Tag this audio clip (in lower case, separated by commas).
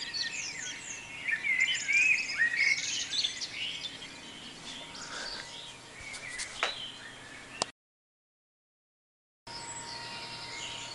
bird song